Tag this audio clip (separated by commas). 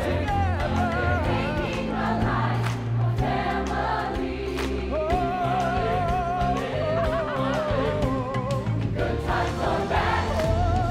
Music